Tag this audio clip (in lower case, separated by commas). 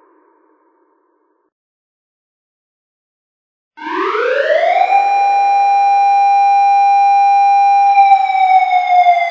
siren